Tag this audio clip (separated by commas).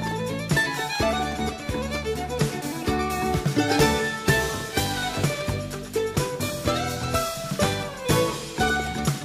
Music